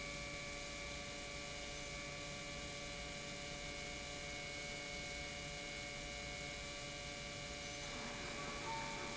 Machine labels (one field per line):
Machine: pump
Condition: normal